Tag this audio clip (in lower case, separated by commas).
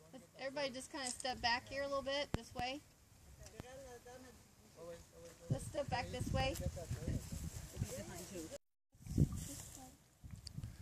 speech